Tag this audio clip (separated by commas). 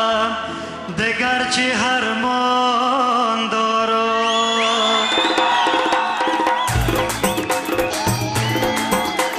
Singing, Music